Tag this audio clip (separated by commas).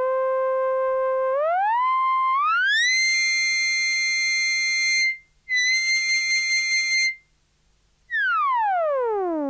Music, Musical instrument, Keyboard (musical), Synthesizer, Piano